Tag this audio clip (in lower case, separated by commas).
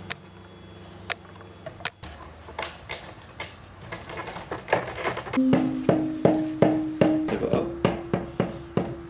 xylophone